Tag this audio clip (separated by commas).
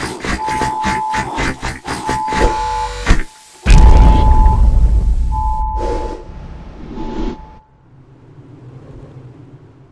Sound effect